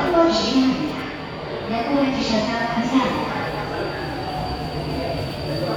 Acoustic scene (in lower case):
subway station